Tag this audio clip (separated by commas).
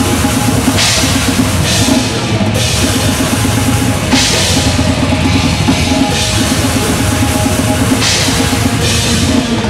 Drum, Music, Musical instrument, Drum kit, Bass drum